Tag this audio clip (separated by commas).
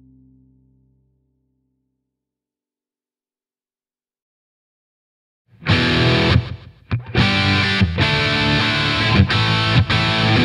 Guitar, Musical instrument, Music, Strum, Bass guitar, Electric guitar, Acoustic guitar, Plucked string instrument